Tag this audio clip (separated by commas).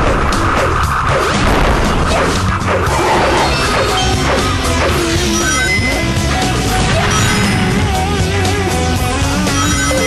Music